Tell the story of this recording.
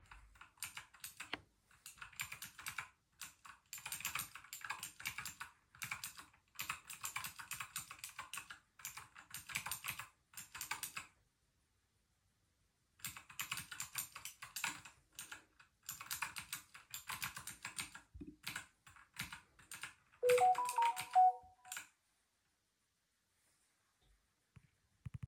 I typed on the keyboard, then the phone rang.